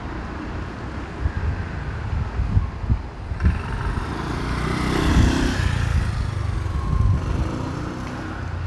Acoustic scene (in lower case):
residential area